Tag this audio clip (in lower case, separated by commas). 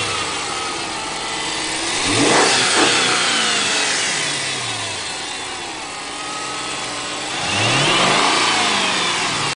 idling, vehicle, car, engine, medium engine (mid frequency), vroom